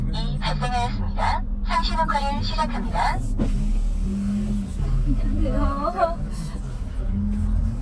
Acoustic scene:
car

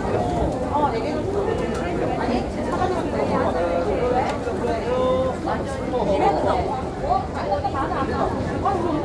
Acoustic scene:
crowded indoor space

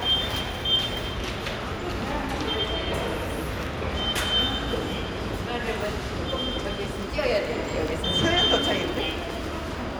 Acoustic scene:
subway station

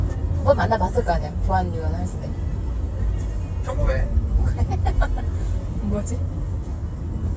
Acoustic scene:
car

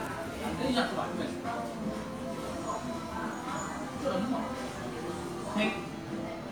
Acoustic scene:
crowded indoor space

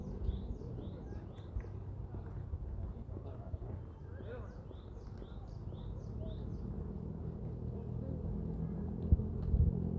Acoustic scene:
residential area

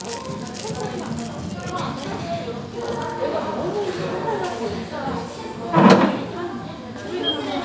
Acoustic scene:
crowded indoor space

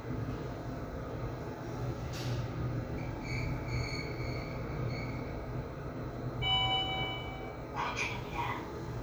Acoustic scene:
elevator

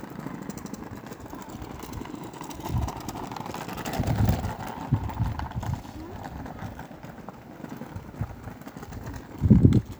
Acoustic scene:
park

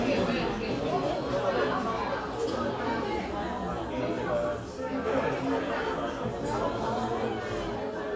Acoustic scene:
crowded indoor space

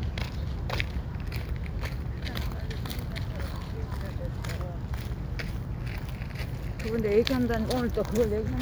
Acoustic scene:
park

